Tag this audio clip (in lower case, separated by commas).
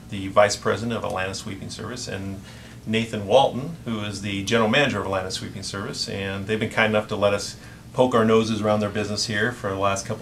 speech